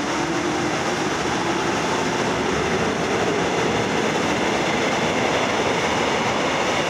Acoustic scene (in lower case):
subway station